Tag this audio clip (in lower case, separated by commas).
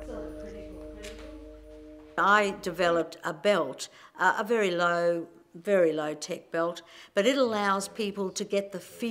speech